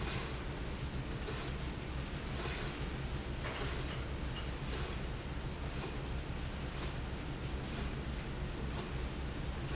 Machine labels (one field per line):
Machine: slide rail